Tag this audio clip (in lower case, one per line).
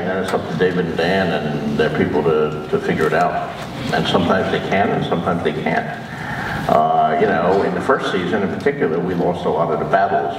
man speaking